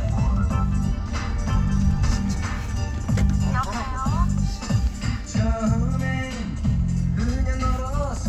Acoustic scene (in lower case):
car